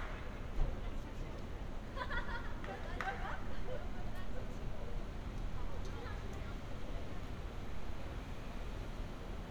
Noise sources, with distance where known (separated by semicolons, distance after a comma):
person or small group talking, far